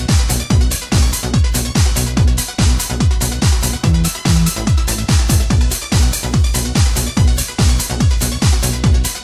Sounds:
Music

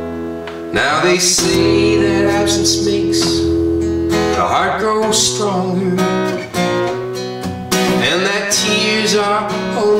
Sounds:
Music

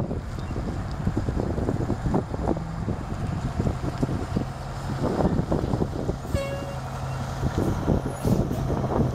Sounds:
Vehicle

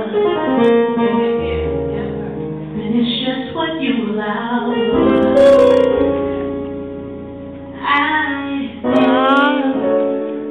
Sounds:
Keyboard (musical), inside a large room or hall, Music, inside a public space, Musical instrument

